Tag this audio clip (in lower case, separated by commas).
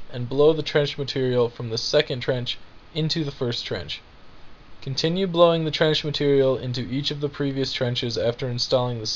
speech